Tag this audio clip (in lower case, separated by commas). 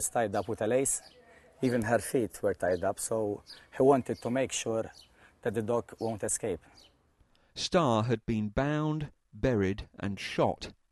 speech